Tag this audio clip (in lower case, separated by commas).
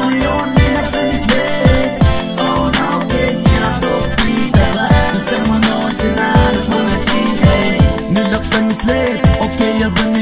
music